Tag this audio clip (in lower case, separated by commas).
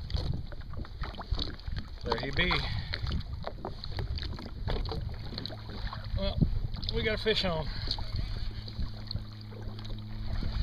speech, vehicle, kayak